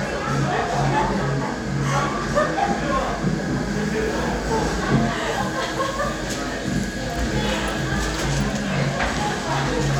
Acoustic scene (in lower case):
crowded indoor space